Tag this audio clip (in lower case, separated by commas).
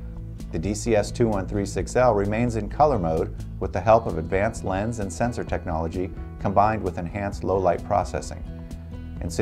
music, speech